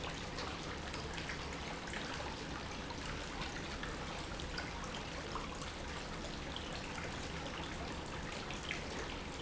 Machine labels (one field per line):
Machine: pump